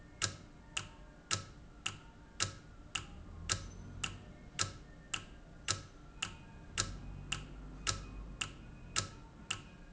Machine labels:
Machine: valve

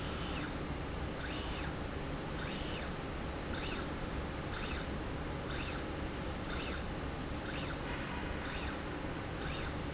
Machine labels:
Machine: slide rail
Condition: normal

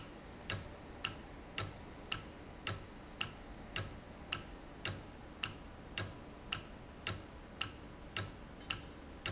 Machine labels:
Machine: valve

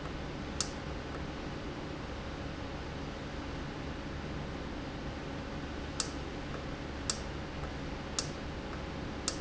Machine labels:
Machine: valve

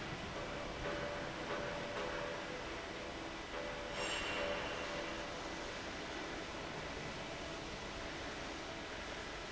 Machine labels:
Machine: fan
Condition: abnormal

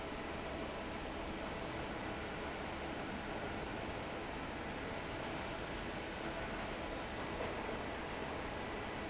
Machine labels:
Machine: fan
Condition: normal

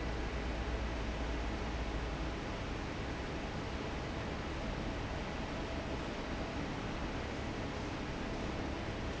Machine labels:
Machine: fan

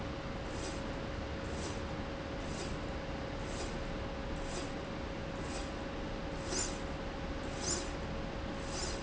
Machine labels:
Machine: slide rail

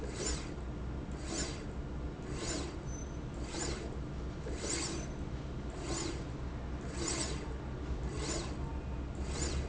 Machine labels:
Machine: slide rail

